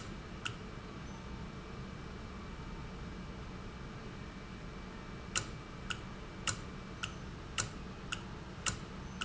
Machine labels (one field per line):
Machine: valve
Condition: normal